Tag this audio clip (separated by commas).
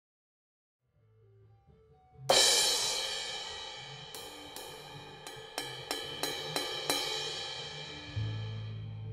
Hi-hat, Musical instrument, Music